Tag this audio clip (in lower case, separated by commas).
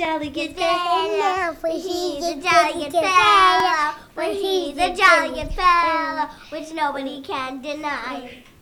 human voice, singing